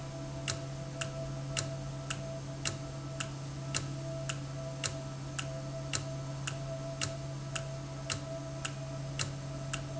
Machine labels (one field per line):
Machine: valve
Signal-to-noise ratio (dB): -6 dB